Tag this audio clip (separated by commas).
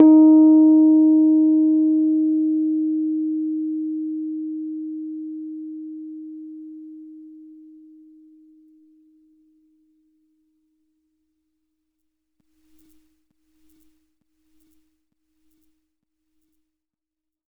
Keyboard (musical), Piano, Musical instrument, Music